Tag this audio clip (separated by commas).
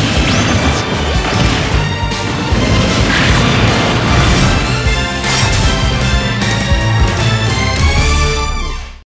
thwack